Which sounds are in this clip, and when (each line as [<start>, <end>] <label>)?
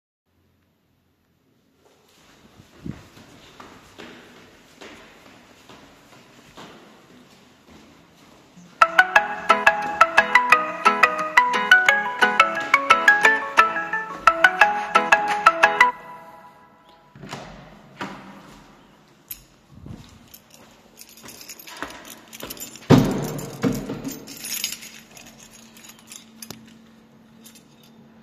[2.72, 15.49] footsteps
[8.68, 16.30] phone ringing
[17.16, 18.99] door
[19.23, 26.82] keys
[20.27, 22.89] footsteps
[21.74, 24.38] door
[27.34, 27.89] keys